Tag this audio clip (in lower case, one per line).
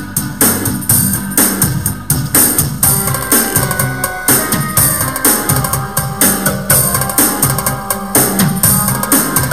video game music
music
background music